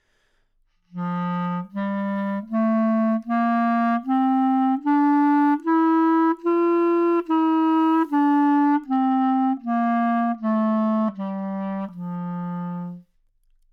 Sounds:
Musical instrument, Music, woodwind instrument

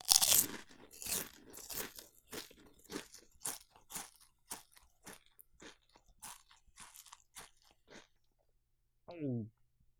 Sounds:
mastication

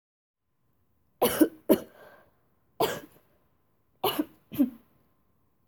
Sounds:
Cough, Respiratory sounds

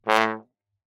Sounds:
Brass instrument, Musical instrument, Music

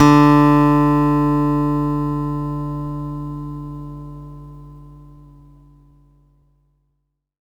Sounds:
Acoustic guitar, Musical instrument, Music, Guitar, Plucked string instrument

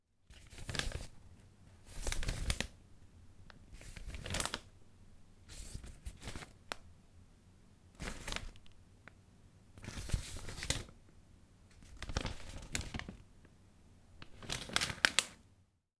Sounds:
Speech, Male speech, Human voice

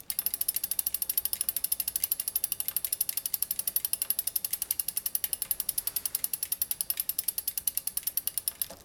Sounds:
Vehicle, Bicycle

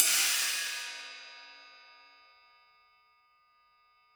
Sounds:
Musical instrument, Hi-hat, Percussion, Cymbal, Music

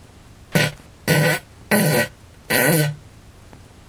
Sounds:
Fart

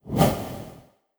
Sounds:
swoosh

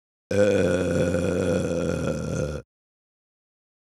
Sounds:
eructation

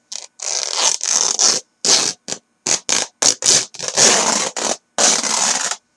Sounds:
Tearing

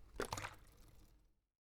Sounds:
Splash, Liquid

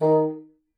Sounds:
Musical instrument, Wind instrument, Music

